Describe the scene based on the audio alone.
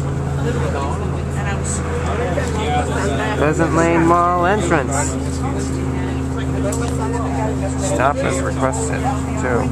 A bus engine idles as people speak